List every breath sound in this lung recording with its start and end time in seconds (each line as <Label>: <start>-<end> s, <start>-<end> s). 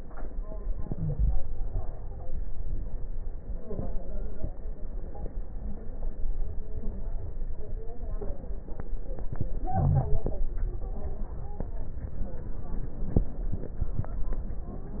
Inhalation: 0.76-2.00 s, 9.32-10.68 s
Wheeze: 0.90-1.39 s
Stridor: 10.70-11.96 s, 14.39-15.00 s
Crackles: 9.32-10.68 s